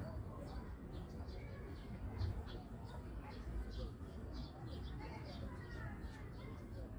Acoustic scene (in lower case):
park